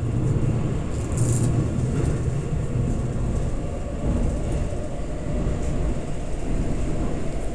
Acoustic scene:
subway train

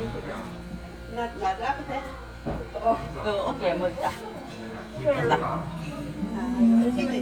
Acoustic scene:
crowded indoor space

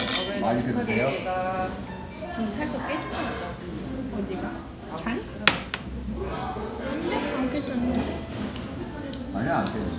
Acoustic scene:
restaurant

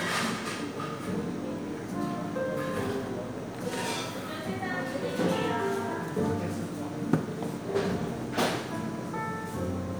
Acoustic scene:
cafe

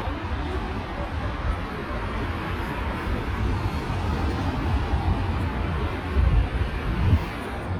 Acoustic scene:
street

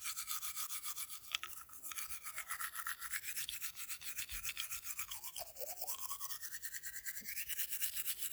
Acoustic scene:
restroom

